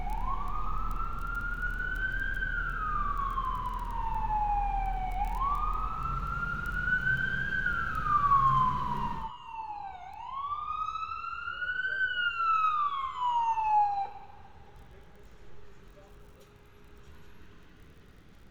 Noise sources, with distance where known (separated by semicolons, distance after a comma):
siren, near